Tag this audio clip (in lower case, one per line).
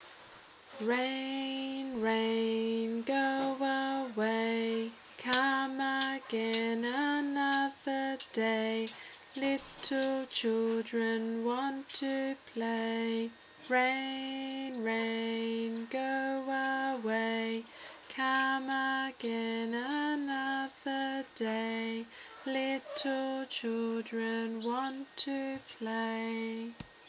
human voice
singing